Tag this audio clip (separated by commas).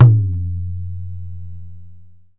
Musical instrument, Tabla, Percussion, Music, Drum